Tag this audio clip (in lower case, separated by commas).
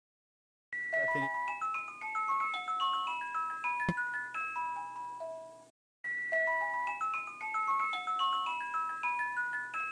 marimba, glockenspiel, mallet percussion